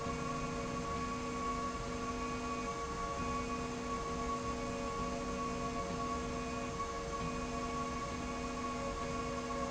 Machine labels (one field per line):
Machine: slide rail